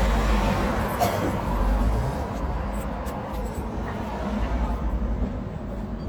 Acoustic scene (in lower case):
street